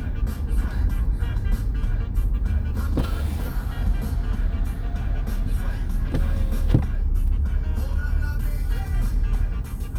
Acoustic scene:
car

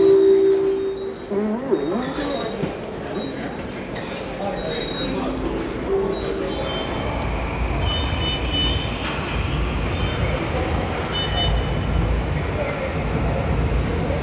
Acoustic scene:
subway station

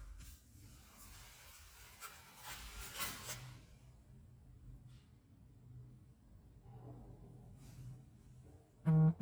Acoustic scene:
elevator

